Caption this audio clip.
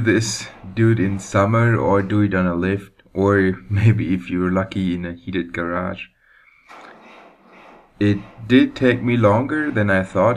Man speaking continuously